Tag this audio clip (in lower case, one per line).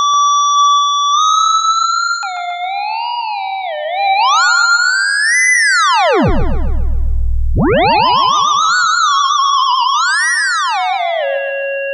music
musical instrument